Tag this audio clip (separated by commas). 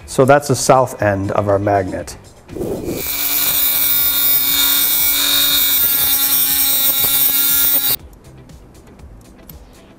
Music, Speech